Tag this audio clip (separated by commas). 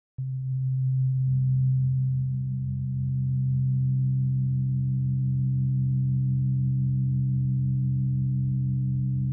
Sine wave